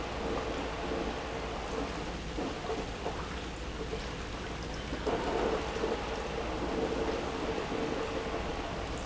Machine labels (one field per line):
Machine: pump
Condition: abnormal